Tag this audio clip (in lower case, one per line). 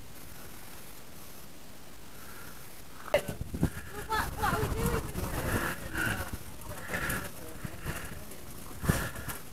speech